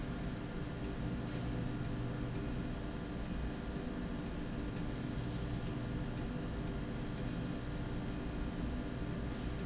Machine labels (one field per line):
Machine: slide rail